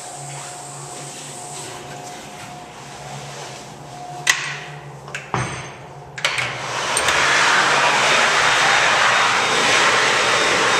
A toilet flushing away water while a bathroom stall door makes noise